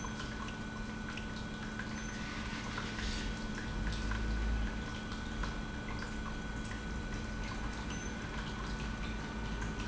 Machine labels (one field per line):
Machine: pump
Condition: normal